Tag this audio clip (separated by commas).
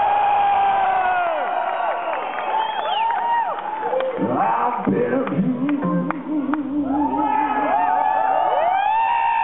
Music